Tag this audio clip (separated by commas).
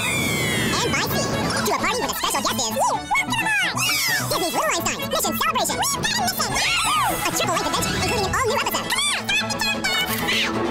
Music, Speech